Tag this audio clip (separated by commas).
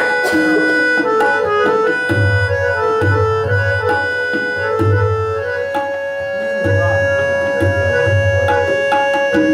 Drum, Tabla, Percussion